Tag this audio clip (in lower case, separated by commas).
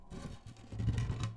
wood, tools